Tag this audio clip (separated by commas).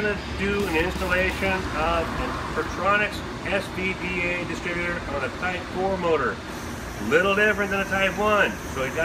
Engine, Speech